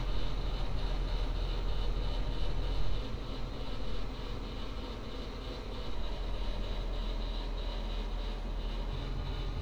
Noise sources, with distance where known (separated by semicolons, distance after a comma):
unidentified impact machinery, far